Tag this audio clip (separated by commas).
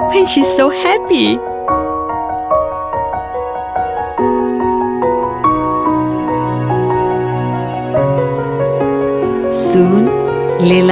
Music, Speech